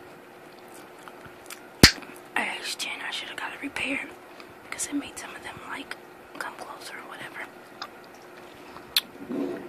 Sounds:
speech
mastication

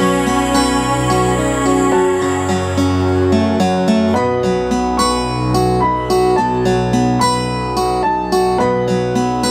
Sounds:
music

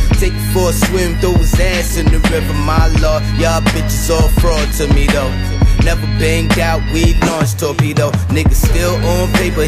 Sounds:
music

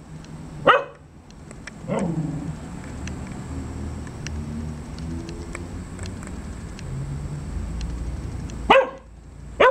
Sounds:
bark
dog barking
canids

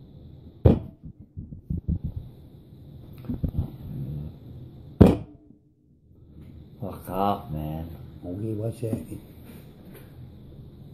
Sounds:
speech

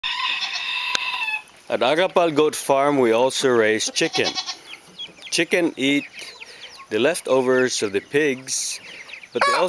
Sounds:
fowl
cluck
rooster
cock-a-doodle-doo

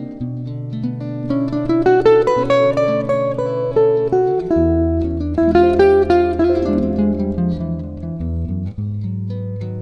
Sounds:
guitar
plucked string instrument
music
strum
acoustic guitar
musical instrument

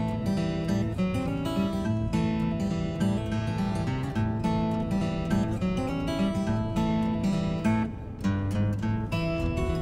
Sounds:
music

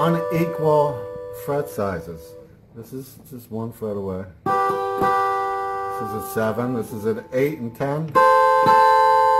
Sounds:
plucked string instrument
guitar
musical instrument
acoustic guitar
speech
music

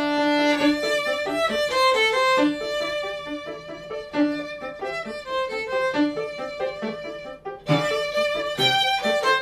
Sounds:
music
fiddle
musical instrument

